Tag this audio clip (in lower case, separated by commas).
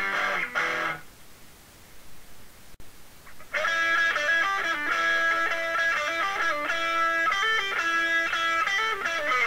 acoustic guitar, strum, musical instrument, music, electric guitar, guitar, plucked string instrument